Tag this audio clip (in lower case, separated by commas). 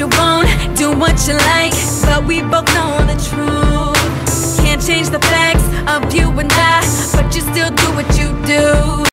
music, disco, pop music, dance music, jazz